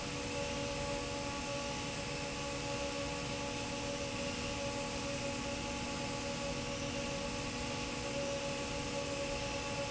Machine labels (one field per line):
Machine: fan